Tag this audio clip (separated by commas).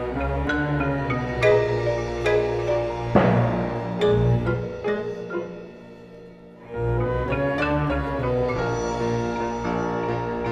xylophone, Glockenspiel, Mallet percussion